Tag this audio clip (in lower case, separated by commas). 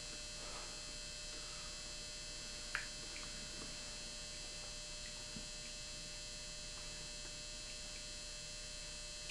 electric razor